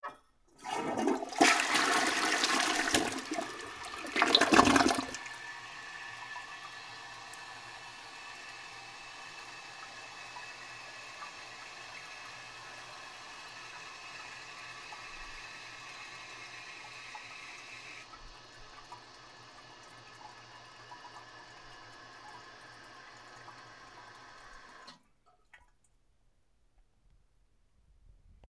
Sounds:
toilet flush
domestic sounds

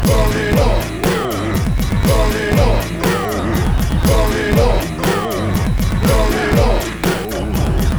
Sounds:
singing
human voice

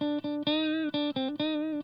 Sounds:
electric guitar
musical instrument
music
guitar
plucked string instrument

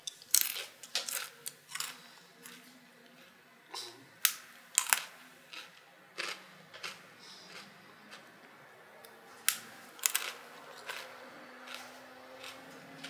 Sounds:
chewing

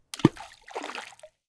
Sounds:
splash
water
liquid

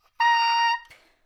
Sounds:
woodwind instrument
music
musical instrument

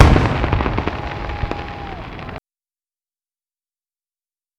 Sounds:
human group actions
fireworks
cheering
explosion

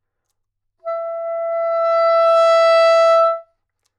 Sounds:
music
woodwind instrument
musical instrument

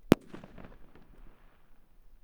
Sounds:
explosion
fireworks

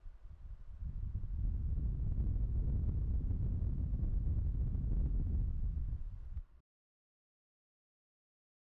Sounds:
wind

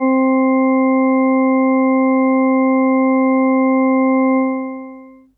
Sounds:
organ
music
keyboard (musical)
musical instrument

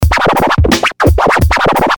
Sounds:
music
scratching (performance technique)
musical instrument

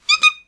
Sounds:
squeak

